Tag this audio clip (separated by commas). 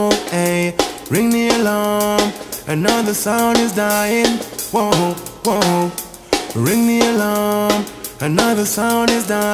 Music, Soundtrack music